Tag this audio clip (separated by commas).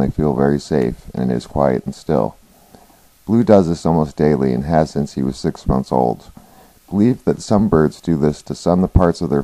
monologue, Speech